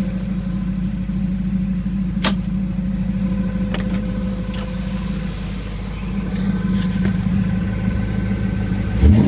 A car engine idles, followed by a door opening nearby while the engine is still idling